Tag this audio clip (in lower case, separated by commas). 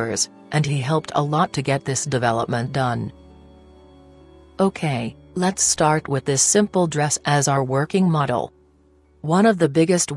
speech, music